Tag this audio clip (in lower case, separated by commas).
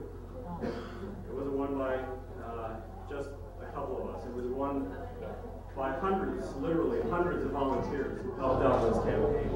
man speaking, monologue, speech